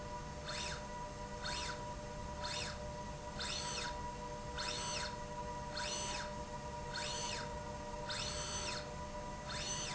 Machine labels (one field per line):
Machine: slide rail